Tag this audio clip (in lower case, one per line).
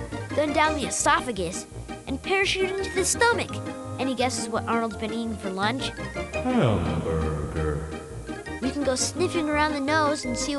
music
speech